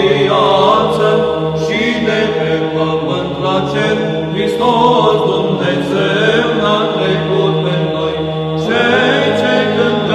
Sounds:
Christian music, Music, Choir

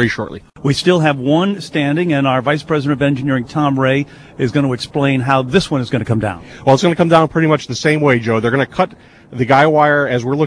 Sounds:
Speech, Radio

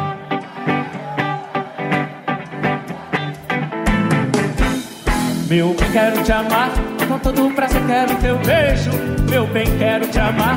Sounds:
Music

